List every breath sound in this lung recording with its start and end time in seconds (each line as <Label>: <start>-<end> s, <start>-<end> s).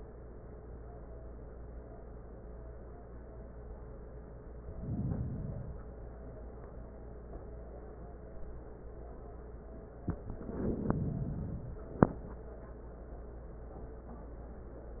Inhalation: 4.54-6.04 s, 10.17-12.00 s